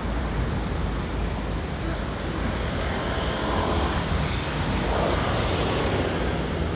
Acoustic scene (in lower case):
street